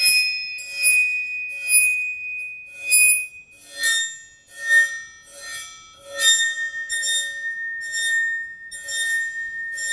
High pitched ringing and vibrations